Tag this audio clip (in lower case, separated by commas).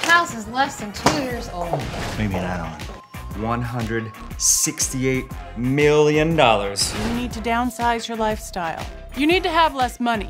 music, speech